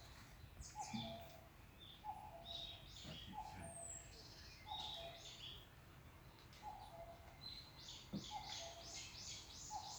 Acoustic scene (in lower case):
park